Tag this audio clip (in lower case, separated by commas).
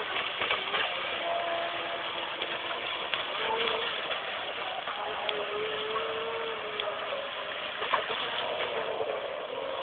motorboat, water vehicle